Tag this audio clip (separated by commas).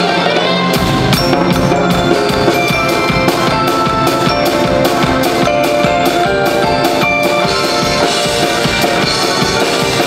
Drum kit, Music, Bass drum, Musical instrument, Drum